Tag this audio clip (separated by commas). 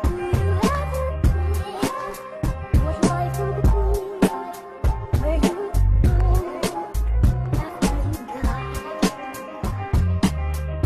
Music